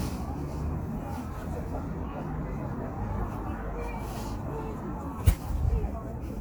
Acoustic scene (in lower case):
residential area